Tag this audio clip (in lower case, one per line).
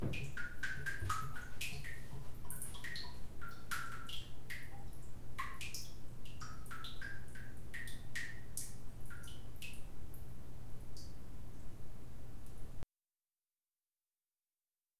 liquid
drip